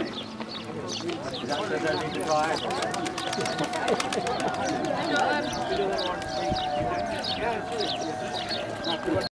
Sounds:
speech, bird, animal

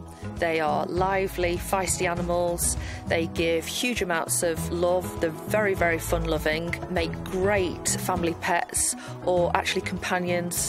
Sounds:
music, speech

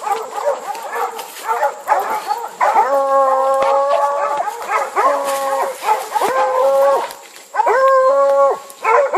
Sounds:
howl, outside, rural or natural, dog, animal, domestic animals

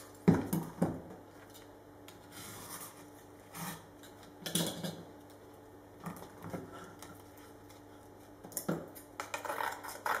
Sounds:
inside a small room

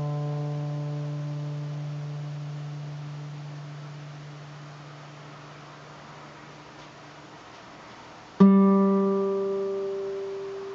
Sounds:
musical instrument, music

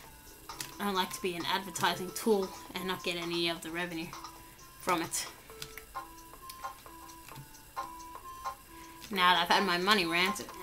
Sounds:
music, speech

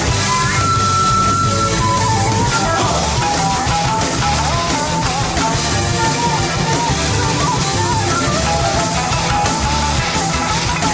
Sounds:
music

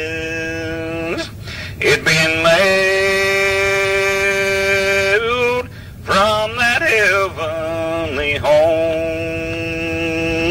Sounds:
male singing

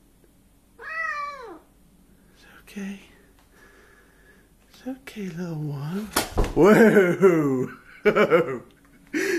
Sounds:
cat, animal, pets, speech

